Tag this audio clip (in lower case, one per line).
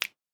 finger snapping
hands